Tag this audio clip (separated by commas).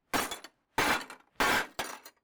Shatter, Glass